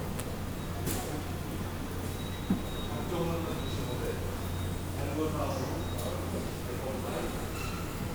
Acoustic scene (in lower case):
subway station